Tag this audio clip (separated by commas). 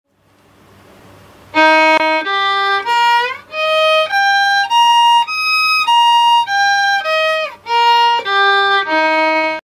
fiddle, Musical instrument, Music